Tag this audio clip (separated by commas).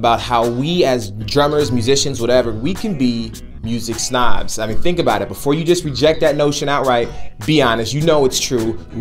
Speech, Music